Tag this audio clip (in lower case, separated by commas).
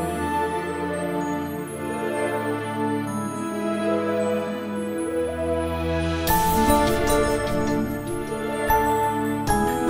music, new-age music